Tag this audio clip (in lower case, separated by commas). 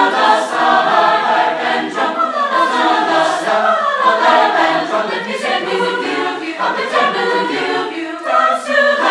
speech